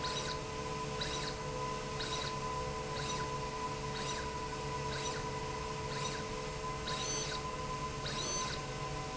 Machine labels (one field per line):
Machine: slide rail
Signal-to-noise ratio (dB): -6 dB